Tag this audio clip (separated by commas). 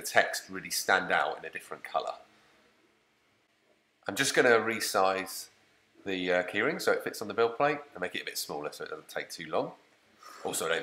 Speech